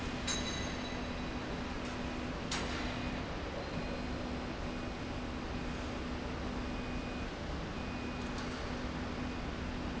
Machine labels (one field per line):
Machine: slide rail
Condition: normal